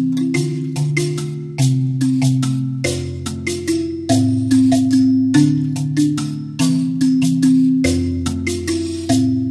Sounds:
Music

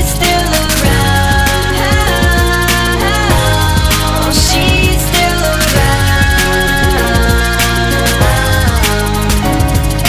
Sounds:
Pop music, Music

